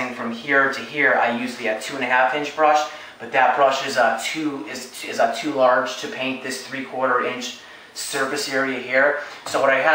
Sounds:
Speech

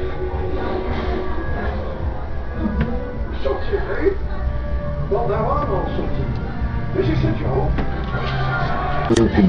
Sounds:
inside a large room or hall, Speech, Music

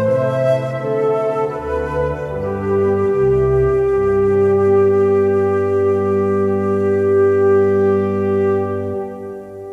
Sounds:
Music, Flute

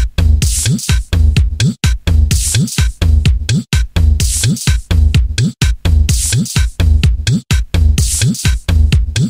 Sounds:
House music, Electronic music, Disco, Music

